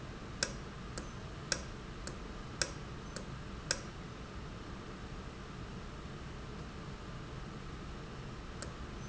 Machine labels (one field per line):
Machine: valve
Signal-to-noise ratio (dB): 0 dB